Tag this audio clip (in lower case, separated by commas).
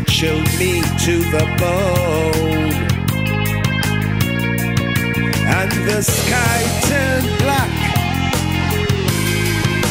music